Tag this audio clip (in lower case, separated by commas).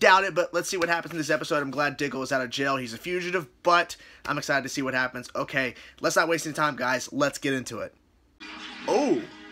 music, speech